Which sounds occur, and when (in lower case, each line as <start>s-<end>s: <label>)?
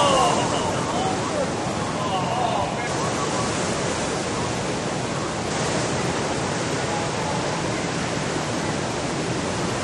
0.0s-1.4s: speech
0.0s-9.8s: waves
1.6s-3.5s: speech
6.7s-7.9s: speech